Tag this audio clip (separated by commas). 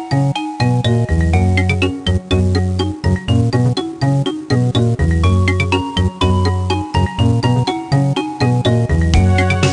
Music